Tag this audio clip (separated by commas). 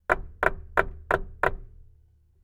home sounds, Door, Wood, Knock